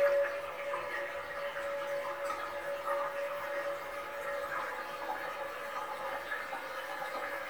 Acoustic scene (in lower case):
restroom